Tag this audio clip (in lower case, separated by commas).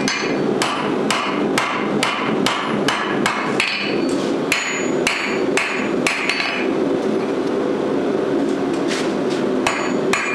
forging swords